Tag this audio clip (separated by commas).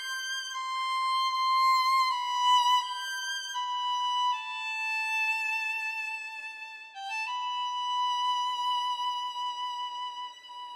Musical instrument, Music, Violin